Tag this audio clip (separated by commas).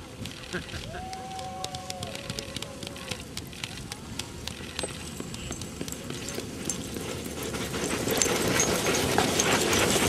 Dog, Domestic animals, Animal